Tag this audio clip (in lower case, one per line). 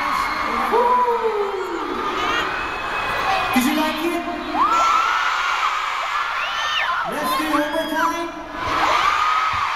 speech
male singing